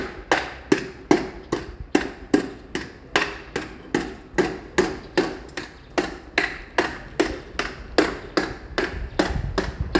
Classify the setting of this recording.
residential area